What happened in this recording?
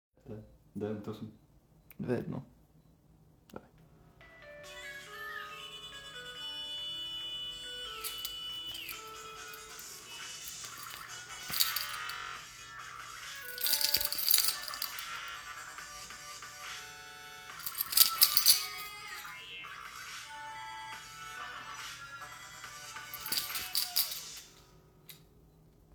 I make a phone call with a person in the room.Then while the call is ongoing I start going through the keys in the keychain